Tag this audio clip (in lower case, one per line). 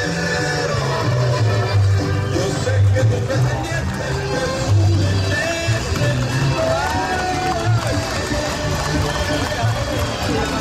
clip-clop
music